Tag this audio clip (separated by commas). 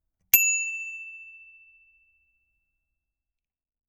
Alarm, Vehicle, Bicycle bell, Bicycle, Bell